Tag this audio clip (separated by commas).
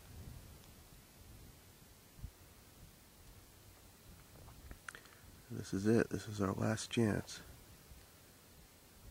Speech